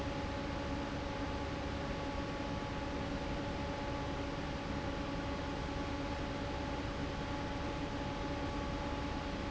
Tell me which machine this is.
fan